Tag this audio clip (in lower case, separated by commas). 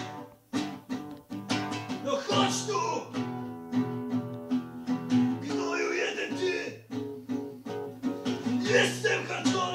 guitar, acoustic guitar, music, plucked string instrument, musical instrument